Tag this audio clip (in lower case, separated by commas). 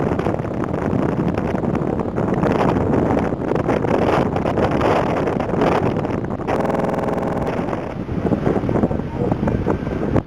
speech